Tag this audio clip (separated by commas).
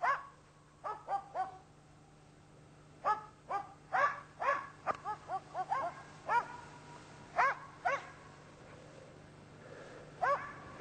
dog bow-wow, Animal, Dog, Domestic animals, Bow-wow